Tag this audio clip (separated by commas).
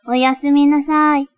Speech, Female speech, Human voice